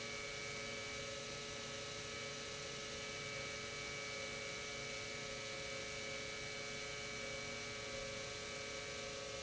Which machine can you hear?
pump